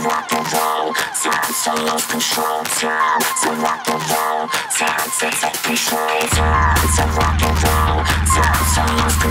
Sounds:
Music

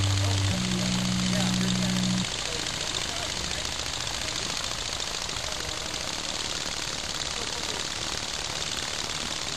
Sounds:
Speech, outside, rural or natural, Jackhammer

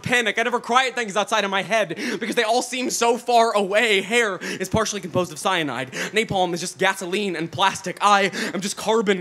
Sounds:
Speech

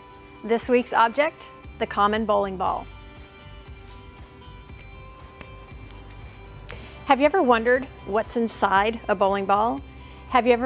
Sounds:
Music, Speech

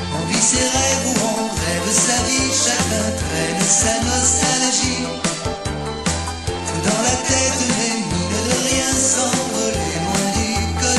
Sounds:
Music

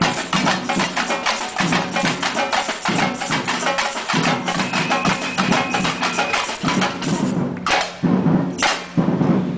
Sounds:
Music

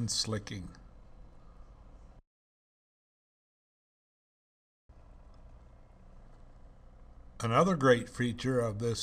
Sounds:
Speech

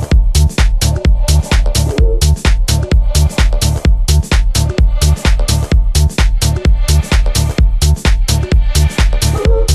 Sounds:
Exciting music, Music

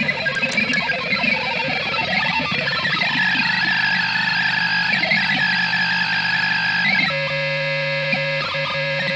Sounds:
Distortion, Music, Musical instrument

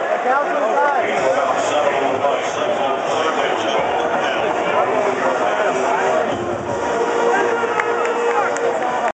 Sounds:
Speech, Music

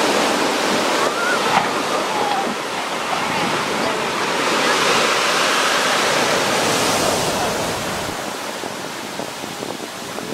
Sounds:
Waves, Wind noise (microphone), Ocean, Wind

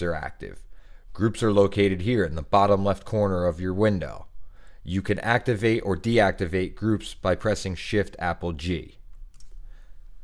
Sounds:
Speech

